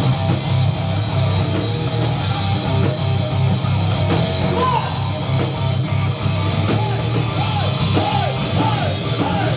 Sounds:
drum kit, plucked string instrument, drum, electric guitar, bass guitar, bass drum, strum, music, guitar, acoustic guitar, musical instrument

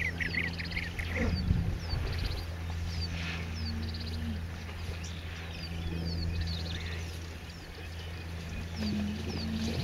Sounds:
outside, rural or natural

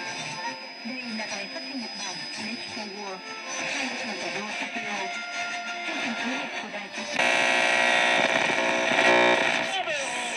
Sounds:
speech, radio, music

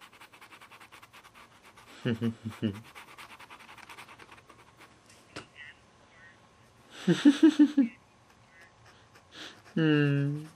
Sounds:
speech

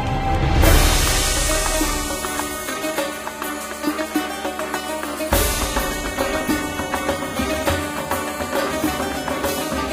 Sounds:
soul music, music

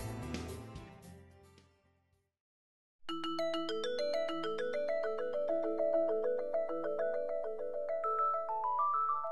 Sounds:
glockenspiel

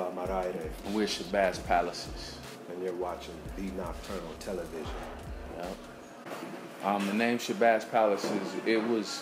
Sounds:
speech, music

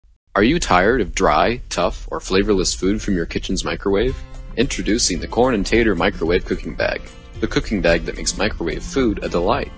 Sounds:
music, speech

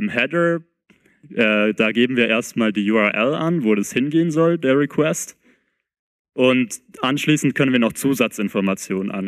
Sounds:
speech

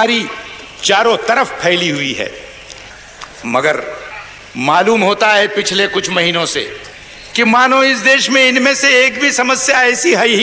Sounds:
speech, male speech

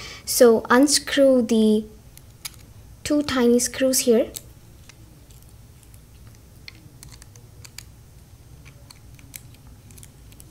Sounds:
speech

